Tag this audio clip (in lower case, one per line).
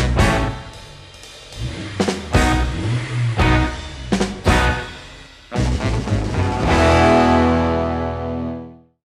car
music